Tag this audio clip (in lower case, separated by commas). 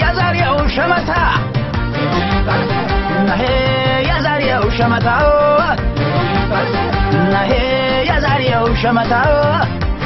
music, funny music